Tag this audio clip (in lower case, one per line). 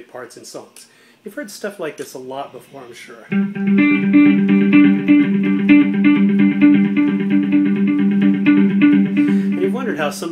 music
speech
plucked string instrument
musical instrument
guitar